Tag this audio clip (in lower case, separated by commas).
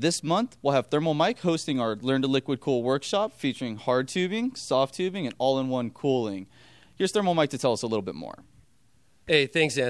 speech